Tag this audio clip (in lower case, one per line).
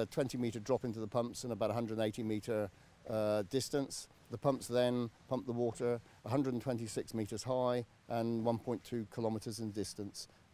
speech